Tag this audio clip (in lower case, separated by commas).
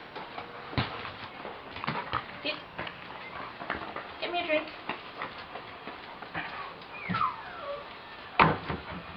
whimper (dog), speech, animal, pets, dog